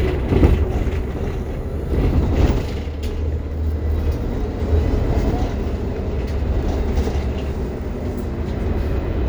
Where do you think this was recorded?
on a bus